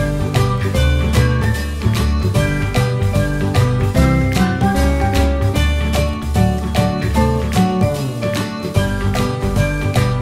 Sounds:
music

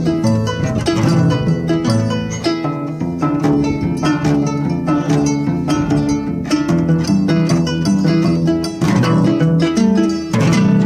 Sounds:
musical instrument
jazz
music

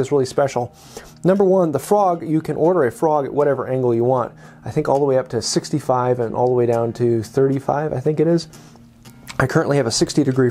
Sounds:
planing timber

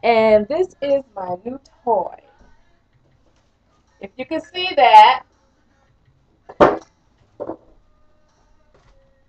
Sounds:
speech

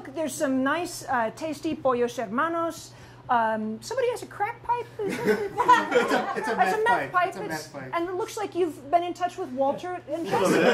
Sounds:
speech

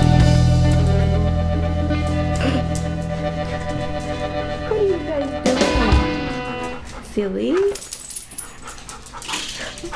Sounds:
speech
pets
dog
animal
music

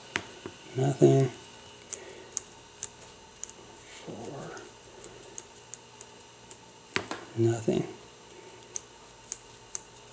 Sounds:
speech

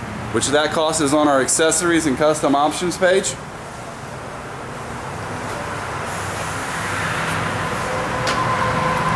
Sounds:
speech

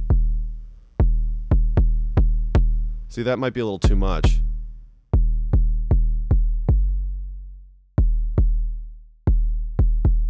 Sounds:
synthesizer
electronic music
speech
music

